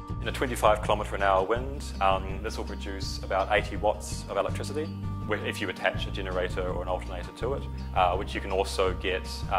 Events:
[0.01, 9.55] music
[0.03, 1.74] male speech
[1.94, 4.85] male speech
[5.29, 7.59] male speech
[7.87, 9.55] male speech

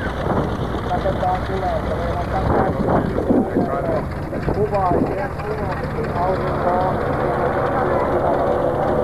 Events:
[0.00, 0.59] wind noise (microphone)
[0.00, 9.03] aircraft
[0.84, 4.05] man speaking
[2.02, 3.80] wind noise (microphone)
[4.42, 4.66] generic impact sounds
[4.43, 6.94] man speaking
[4.79, 5.22] wind noise (microphone)
[7.32, 8.62] man speaking

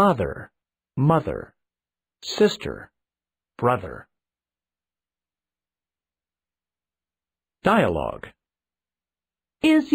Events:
[0.00, 0.50] speech synthesizer
[0.93, 1.55] speech synthesizer
[2.21, 2.93] speech synthesizer
[3.58, 4.04] speech synthesizer
[7.61, 8.35] speech synthesizer
[9.61, 9.94] speech synthesizer

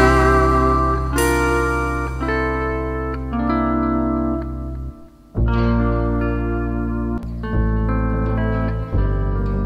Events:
[0.00, 9.65] music

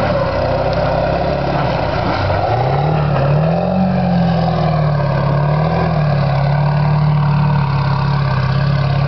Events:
[0.00, 9.05] medium engine (mid frequency)
[0.65, 0.77] tick

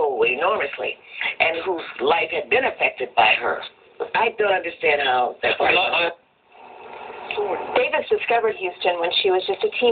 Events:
[0.00, 0.90] female speech
[0.00, 9.91] television
[0.97, 1.17] breathing
[1.17, 3.69] female speech
[3.92, 6.09] female speech
[7.29, 7.34] tick
[7.34, 7.71] generic impact sounds
[7.72, 9.91] female speech

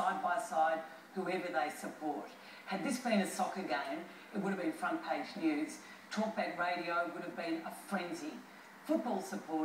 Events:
[0.00, 0.97] female speech
[0.00, 9.64] background noise
[1.16, 2.30] female speech
[2.28, 2.68] breathing
[2.69, 4.09] female speech
[4.01, 4.32] breathing
[4.36, 5.84] female speech
[5.70, 6.11] breathing
[6.15, 8.48] female speech
[8.51, 8.87] breathing
[8.90, 9.64] female speech

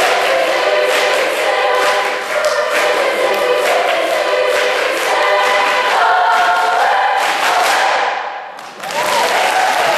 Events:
[0.00, 9.95] choir
[0.00, 9.95] music
[0.77, 1.14] applause
[1.63, 1.88] applause
[2.30, 2.88] applause
[3.54, 4.05] applause
[4.38, 5.10] applause
[5.30, 5.96] applause
[5.33, 5.91] music
[6.25, 6.87] applause
[7.06, 7.87] applause
[8.46, 9.95] cheering
[8.70, 9.95] whoop
[8.75, 9.95] applause

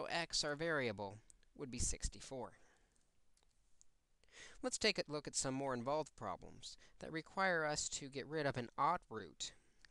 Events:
[0.00, 1.26] male speech
[1.13, 1.40] breathing
[1.29, 1.47] tick
[1.56, 2.75] male speech
[1.81, 2.15] generic impact sounds
[2.48, 3.08] breathing
[2.73, 3.05] tick
[3.14, 3.23] tick
[3.37, 3.54] tick
[3.81, 3.88] tick
[4.25, 4.60] breathing
[4.65, 6.77] male speech
[6.81, 6.97] breathing
[7.00, 9.59] male speech
[9.62, 9.90] breathing
[9.81, 9.90] tick

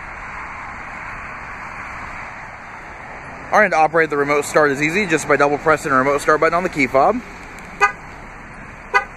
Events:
[0.00, 9.15] motor vehicle (road)
[3.47, 7.18] man speaking
[7.33, 7.61] generic impact sounds
[7.77, 7.96] car alarm
[8.88, 9.05] car alarm

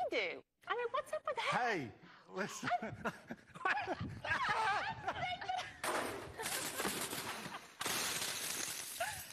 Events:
[0.00, 0.36] woman speaking
[0.00, 9.32] background noise
[0.00, 9.32] conversation
[0.57, 1.55] woman speaking
[1.33, 1.90] man speaking
[1.94, 2.90] whispering
[2.35, 2.72] man speaking
[2.60, 4.05] laughter
[2.61, 2.78] woman speaking
[4.20, 4.90] shout
[4.82, 5.67] woman speaking
[5.06, 5.78] laughter
[5.80, 7.76] breaking
[6.29, 7.87] laughter
[7.78, 9.32] shatter
[8.91, 9.19] laughter

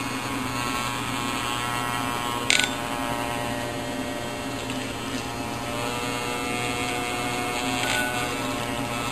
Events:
[0.00, 9.11] electric toothbrush
[0.00, 9.11] mechanisms

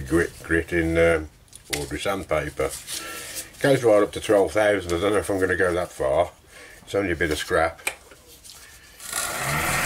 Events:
[0.00, 0.32] male speech
[0.00, 9.85] mechanisms
[0.48, 1.26] male speech
[1.48, 1.72] generic impact sounds
[1.68, 1.79] tick
[1.71, 2.73] male speech
[2.73, 3.52] surface contact
[2.98, 3.27] brief tone
[3.58, 6.33] male speech
[4.85, 4.94] tick
[6.46, 6.82] breathing
[6.76, 6.92] generic impact sounds
[6.85, 7.73] male speech
[7.25, 7.41] generic impact sounds
[7.83, 7.97] tick
[8.09, 8.36] generic impact sounds
[8.26, 8.84] surface contact
[8.45, 8.58] tick
[8.58, 9.01] breathing
[9.03, 9.85] power tool

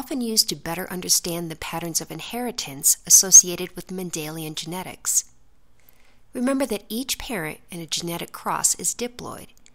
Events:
[0.00, 5.30] female speech
[0.00, 9.74] background noise
[5.77, 6.24] breathing
[6.37, 9.58] female speech
[9.59, 9.74] clicking

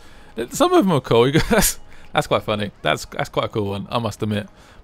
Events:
[0.00, 0.31] breathing
[0.00, 4.83] background noise
[0.00, 4.83] music
[0.34, 1.77] male speech
[1.31, 1.72] giggle
[1.85, 2.10] breathing
[2.10, 2.67] male speech
[2.82, 3.03] male speech
[3.11, 4.40] male speech
[4.53, 4.83] breathing

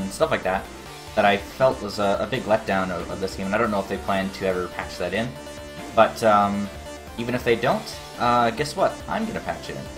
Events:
[0.00, 0.67] male speech
[0.00, 9.95] music
[0.00, 9.95] video game sound
[1.17, 1.39] male speech
[1.58, 2.56] male speech
[2.69, 3.94] male speech
[4.07, 4.65] male speech
[4.80, 5.33] male speech
[5.71, 5.95] sound effect
[5.94, 6.72] male speech
[7.15, 7.95] male speech
[8.18, 8.93] male speech
[9.10, 9.88] male speech

